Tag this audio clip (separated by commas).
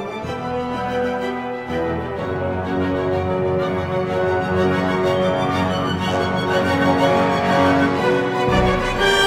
Music